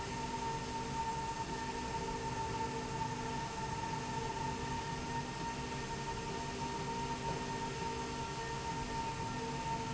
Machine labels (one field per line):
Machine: slide rail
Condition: normal